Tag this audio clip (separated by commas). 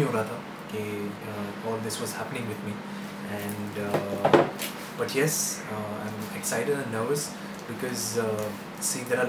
Speech